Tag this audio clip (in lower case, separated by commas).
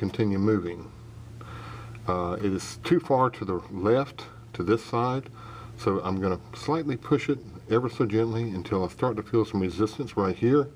speech